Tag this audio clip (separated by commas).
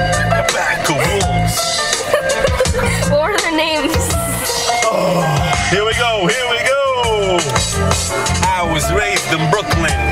Music, Speech, Soundtrack music